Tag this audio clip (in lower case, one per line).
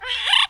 animal
wild animals
bird